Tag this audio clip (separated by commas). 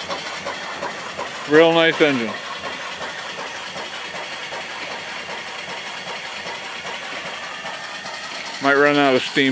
outside, rural or natural, Engine, Speech